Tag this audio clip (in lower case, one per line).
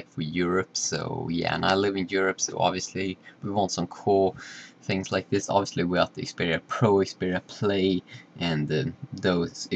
speech